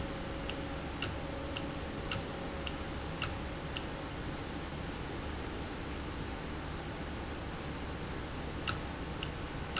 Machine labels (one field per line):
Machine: valve